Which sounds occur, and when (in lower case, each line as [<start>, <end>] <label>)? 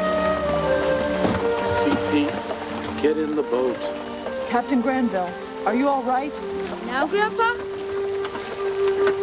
[0.00, 9.22] water
[0.01, 9.22] music
[1.12, 2.40] water vehicle
[1.49, 9.22] conversation
[1.51, 2.26] male speech
[2.91, 3.91] male speech
[4.47, 5.33] female speech
[5.62, 6.35] female speech
[6.80, 7.76] child speech
[7.56, 9.22] water vehicle